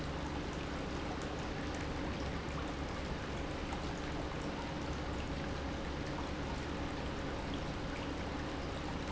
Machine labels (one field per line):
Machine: pump